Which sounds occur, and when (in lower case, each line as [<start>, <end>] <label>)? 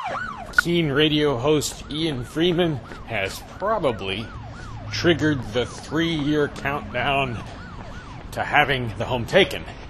[0.00, 0.59] siren
[0.00, 9.85] motor vehicle (road)
[0.49, 2.80] man speaking
[1.42, 8.21] siren
[1.66, 1.73] tick
[2.05, 2.13] tick
[2.47, 2.55] tick
[2.84, 2.95] tick
[3.04, 3.40] man speaking
[3.55, 3.64] tick
[3.58, 4.29] man speaking
[4.90, 5.66] man speaking
[5.75, 5.88] tick
[5.86, 7.43] man speaking
[6.14, 6.24] tick
[6.53, 6.61] tick
[8.30, 9.73] man speaking